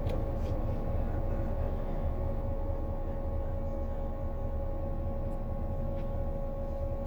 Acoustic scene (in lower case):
bus